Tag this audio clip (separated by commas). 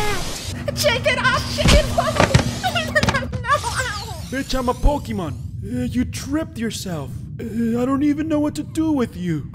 Speech